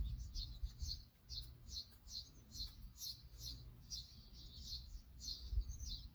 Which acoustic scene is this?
park